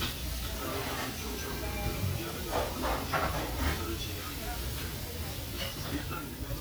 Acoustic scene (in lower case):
restaurant